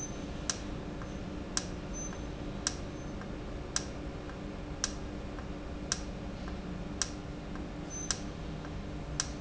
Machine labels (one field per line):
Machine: valve